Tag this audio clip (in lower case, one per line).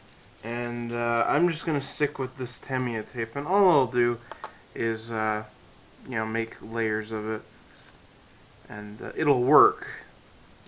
inside a small room
speech